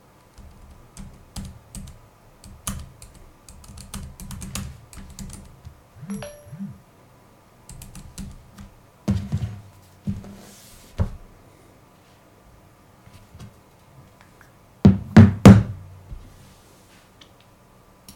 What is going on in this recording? While I was typing on the keyboard I got a phone notification. I picked up the phone, checked it and put the phone down on the table.